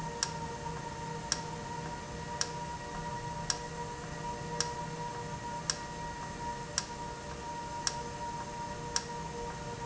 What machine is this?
valve